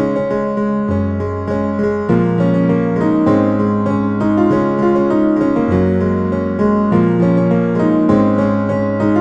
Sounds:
Music

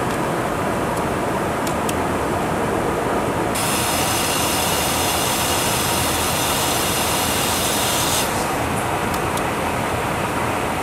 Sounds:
airplane, Aircraft, Jet engine, Vehicle

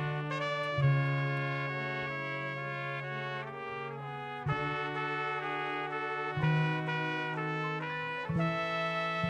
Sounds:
Orchestra, Trombone, Brass instrument, Music, Classical music

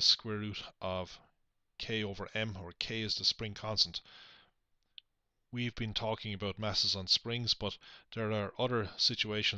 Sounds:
Speech

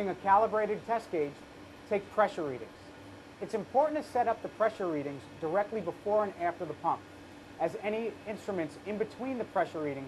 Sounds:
Speech

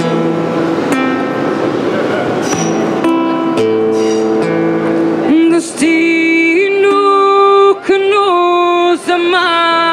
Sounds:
Music, Plucked string instrument

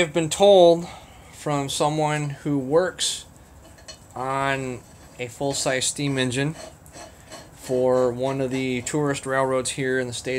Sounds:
Speech

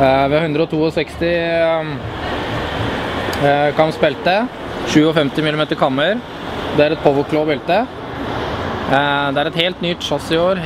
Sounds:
Speech

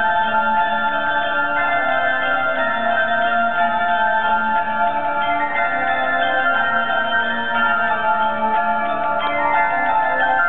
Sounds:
Music, Bell

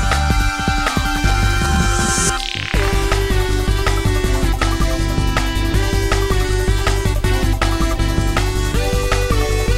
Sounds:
Music

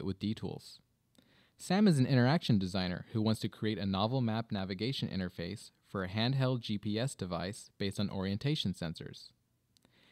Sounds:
Speech

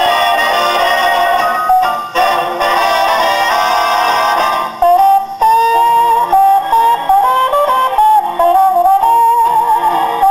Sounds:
Music

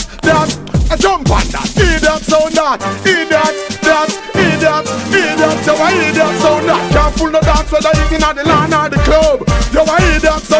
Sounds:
Music

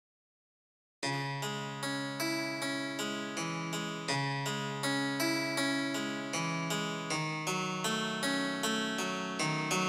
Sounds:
Piano, Keyboard (musical)

